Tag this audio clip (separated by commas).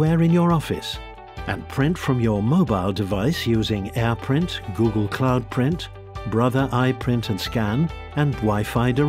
Speech, Music